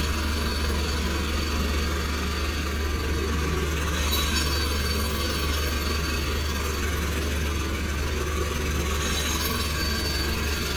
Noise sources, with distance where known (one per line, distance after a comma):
jackhammer, near